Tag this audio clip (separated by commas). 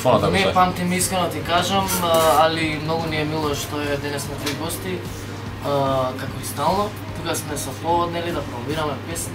Music, Speech